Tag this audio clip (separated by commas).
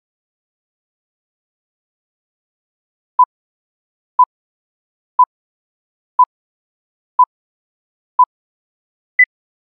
Silence